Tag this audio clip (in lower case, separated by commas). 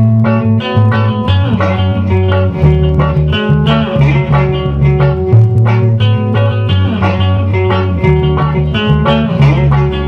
plucked string instrument, acoustic guitar, musical instrument, music, guitar